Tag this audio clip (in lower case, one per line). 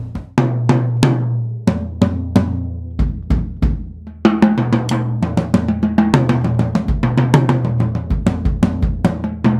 drum kit
drum
music
bass drum
musical instrument